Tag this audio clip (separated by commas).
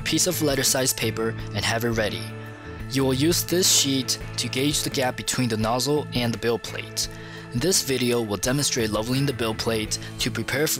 Speech, Music